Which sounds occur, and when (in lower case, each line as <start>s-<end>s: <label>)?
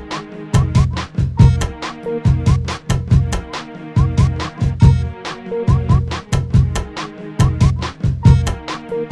0.0s-9.1s: music